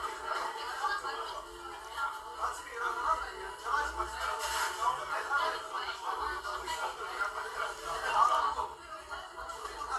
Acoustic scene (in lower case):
crowded indoor space